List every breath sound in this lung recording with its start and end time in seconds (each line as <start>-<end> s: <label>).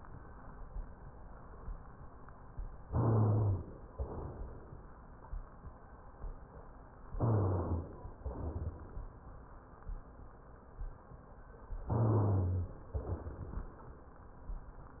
2.87-3.66 s: inhalation
2.92-3.65 s: rhonchi
3.89-5.04 s: exhalation
7.17-8.06 s: inhalation
7.19-7.88 s: rhonchi
8.16-9.09 s: exhalation
11.87-12.72 s: rhonchi
11.92-12.81 s: inhalation
12.93-13.78 s: exhalation